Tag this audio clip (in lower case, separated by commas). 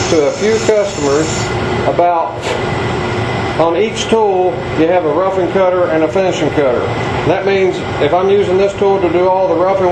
speech, tools